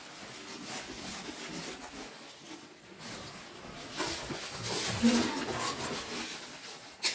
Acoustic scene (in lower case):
elevator